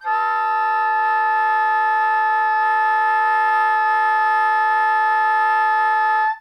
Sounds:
woodwind instrument, Music, Musical instrument

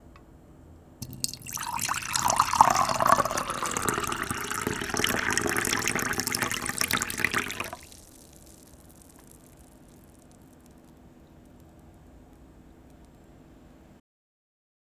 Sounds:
dribble, Liquid, Fill (with liquid), Engine, Pour

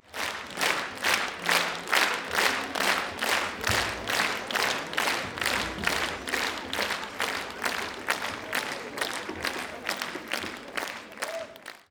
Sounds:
Applause, Human group actions

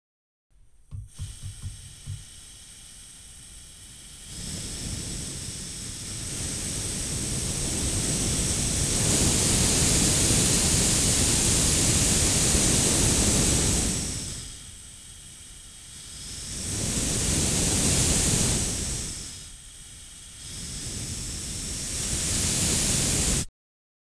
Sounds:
Hiss

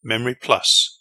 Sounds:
man speaking, Speech, Human voice

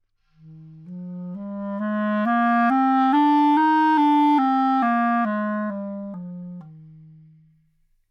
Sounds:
Music, Musical instrument, Wind instrument

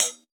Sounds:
Cymbal, Music, Musical instrument, Percussion, Hi-hat

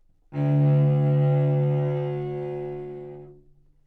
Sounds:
Music, Musical instrument, Bowed string instrument

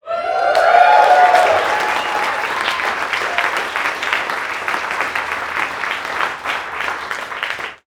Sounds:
Crowd, Cheering, Human group actions, Applause

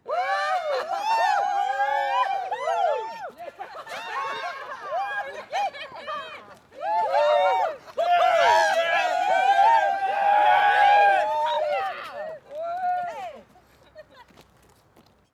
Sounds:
Human group actions, Cheering

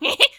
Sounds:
Human voice, Laughter

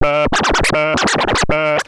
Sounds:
Musical instrument, Music, Scratching (performance technique)

